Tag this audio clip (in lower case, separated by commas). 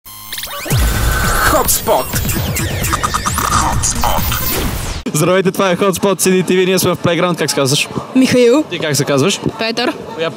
sound effect, speech, music